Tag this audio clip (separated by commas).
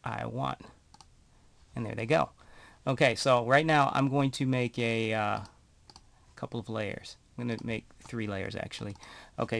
Speech